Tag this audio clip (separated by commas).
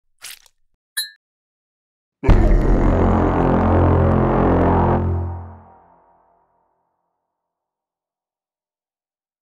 Music